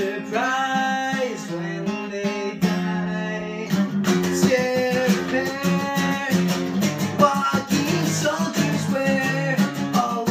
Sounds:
Music

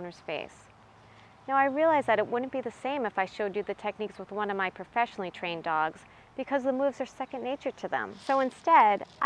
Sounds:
Speech

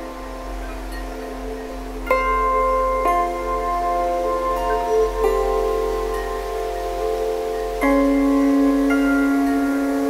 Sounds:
Music, Rustling leaves

